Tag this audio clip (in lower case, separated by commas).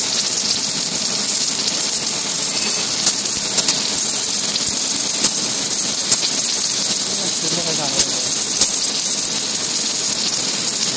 arc welding